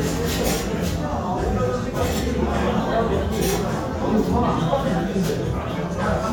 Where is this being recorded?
in a restaurant